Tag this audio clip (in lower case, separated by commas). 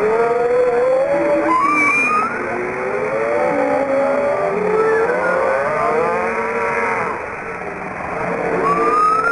whale calling